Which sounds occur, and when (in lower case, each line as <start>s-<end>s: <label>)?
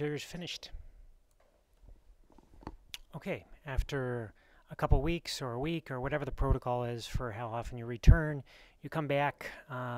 0.0s-0.7s: male speech
0.0s-9.9s: background noise
1.4s-1.6s: generic impact sounds
1.8s-2.0s: generic impact sounds
2.2s-2.8s: generic impact sounds
2.9s-3.0s: tick
3.1s-3.4s: male speech
3.6s-4.3s: male speech
4.3s-4.6s: breathing
4.7s-8.4s: male speech
8.4s-8.7s: breathing
8.8s-9.9s: male speech